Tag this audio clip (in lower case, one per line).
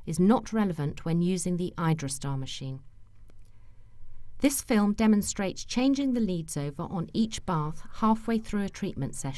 speech